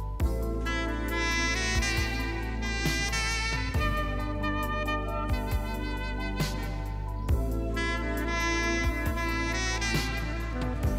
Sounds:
playing saxophone

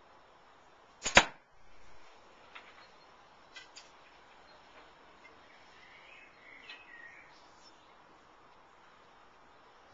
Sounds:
Arrow

